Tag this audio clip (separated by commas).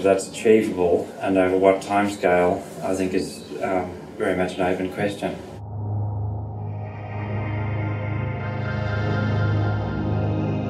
Speech, Music